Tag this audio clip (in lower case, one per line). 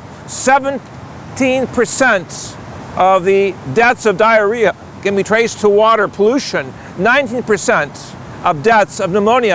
stream
speech